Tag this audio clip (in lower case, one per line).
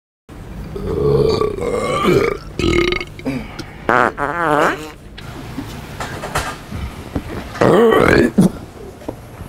people farting